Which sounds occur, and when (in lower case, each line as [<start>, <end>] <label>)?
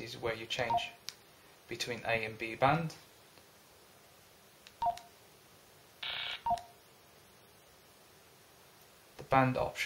[0.00, 0.92] male speech
[0.00, 9.85] mechanisms
[0.22, 0.33] generic impact sounds
[0.64, 0.90] keypress tone
[1.00, 1.14] tick
[1.32, 1.56] surface contact
[1.65, 2.92] male speech
[1.87, 1.97] generic impact sounds
[3.29, 3.40] generic impact sounds
[4.59, 4.68] tick
[4.77, 5.04] keypress tone
[4.90, 4.99] tick
[5.97, 6.33] noise
[6.42, 6.70] keypress tone
[6.50, 6.59] tick
[9.10, 9.25] generic impact sounds
[9.26, 9.85] male speech